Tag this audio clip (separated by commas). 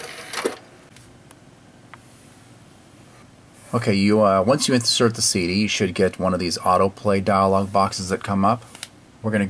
Speech